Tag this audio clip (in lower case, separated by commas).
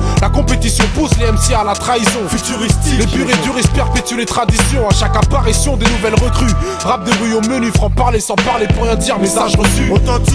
music